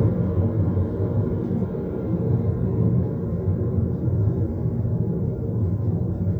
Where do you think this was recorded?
in a car